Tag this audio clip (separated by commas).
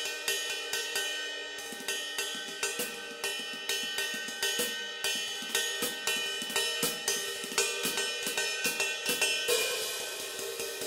Music, Hi-hat